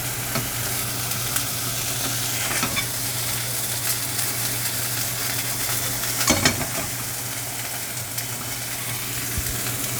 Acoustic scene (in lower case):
kitchen